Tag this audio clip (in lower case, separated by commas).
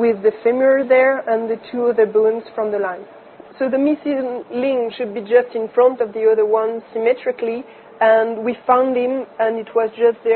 inside a small room, speech